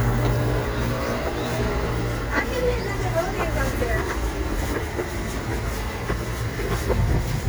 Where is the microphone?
on a street